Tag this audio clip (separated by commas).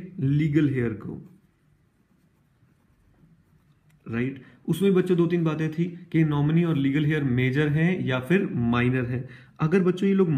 Speech